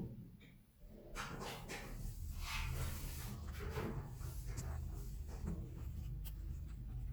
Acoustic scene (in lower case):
elevator